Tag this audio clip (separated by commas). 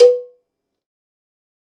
Bell, Cowbell